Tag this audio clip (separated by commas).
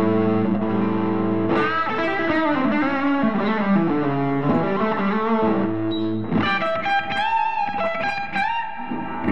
Music